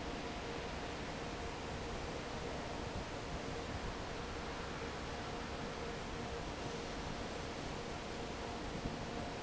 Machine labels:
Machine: fan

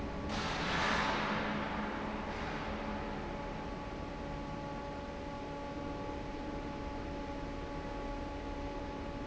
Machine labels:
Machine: fan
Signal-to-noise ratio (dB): -6 dB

